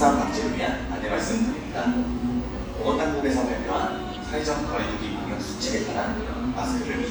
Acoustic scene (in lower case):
cafe